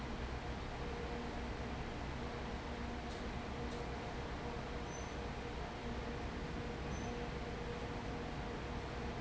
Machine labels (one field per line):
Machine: fan